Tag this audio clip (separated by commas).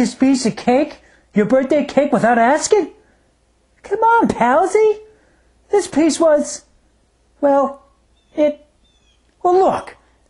Speech